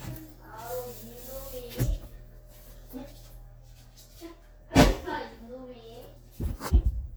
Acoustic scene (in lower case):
kitchen